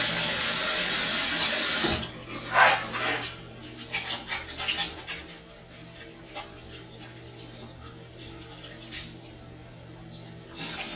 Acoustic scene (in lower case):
restroom